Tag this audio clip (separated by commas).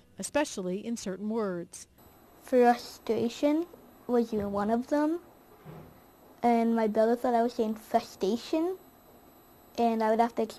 man speaking, Narration, Child speech, Speech, woman speaking